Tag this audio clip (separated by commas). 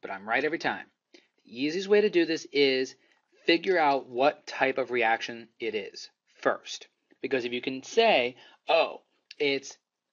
Speech